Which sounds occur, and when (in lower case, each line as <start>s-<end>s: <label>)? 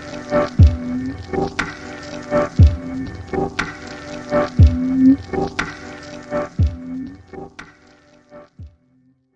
0.0s-0.7s: crackle
0.0s-9.3s: music
1.0s-2.7s: crackle
2.9s-4.7s: crackle
4.8s-6.7s: crackle
7.0s-8.7s: crackle